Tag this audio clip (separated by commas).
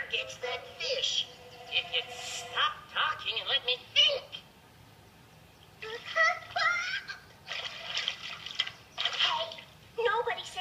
Music, Speech